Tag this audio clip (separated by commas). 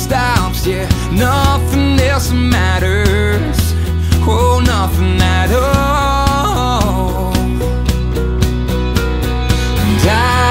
Music